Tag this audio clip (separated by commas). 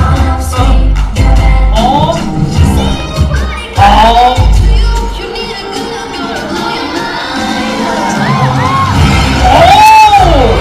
Music, Speech